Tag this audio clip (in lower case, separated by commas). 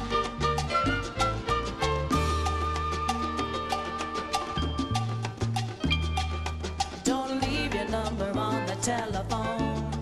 music